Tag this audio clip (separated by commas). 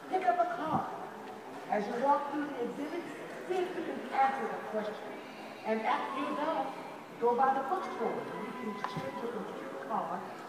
Speech